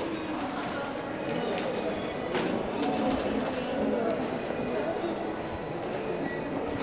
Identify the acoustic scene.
crowded indoor space